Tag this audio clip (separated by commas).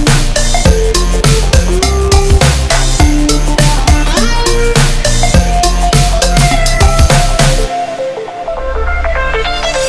Music